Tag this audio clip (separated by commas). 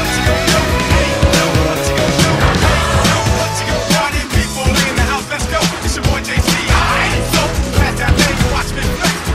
Music